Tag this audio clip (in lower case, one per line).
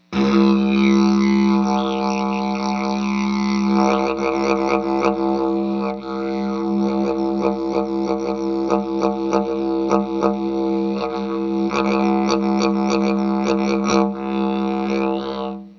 musical instrument
music